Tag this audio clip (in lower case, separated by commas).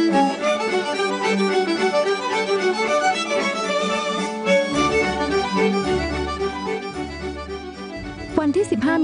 wedding music, music, speech